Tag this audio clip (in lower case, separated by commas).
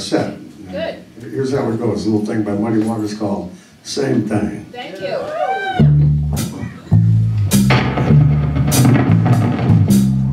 speech, music